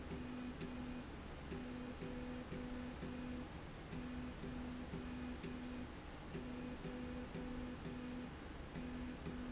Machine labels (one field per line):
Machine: slide rail